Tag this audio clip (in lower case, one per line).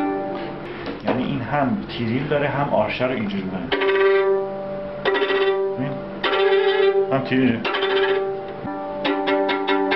speech
violin
music
musical instrument